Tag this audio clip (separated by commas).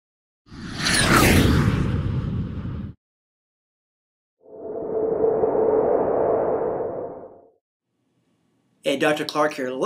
inside a small room, Speech